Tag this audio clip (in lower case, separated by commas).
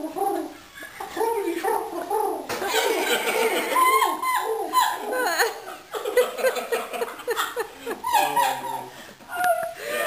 bird call, bird